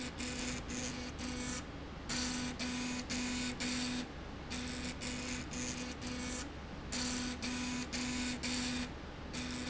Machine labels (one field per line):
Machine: slide rail